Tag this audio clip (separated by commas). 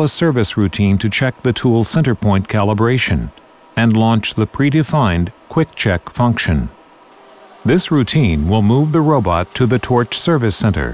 Speech